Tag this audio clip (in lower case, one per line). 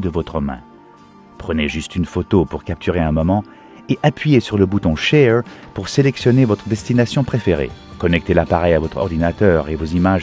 speech
music